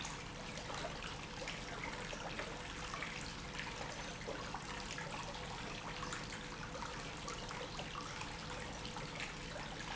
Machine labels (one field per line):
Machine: pump